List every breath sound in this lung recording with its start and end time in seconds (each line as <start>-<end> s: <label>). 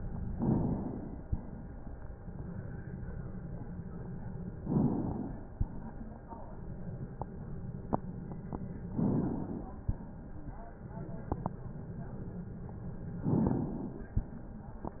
0.22-1.23 s: inhalation
1.21-2.21 s: exhalation
4.54-5.52 s: inhalation
5.53-6.25 s: exhalation
8.91-9.82 s: inhalation
9.80-10.82 s: exhalation
13.16-14.14 s: inhalation